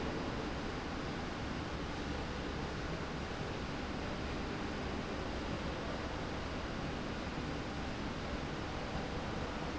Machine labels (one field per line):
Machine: slide rail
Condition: normal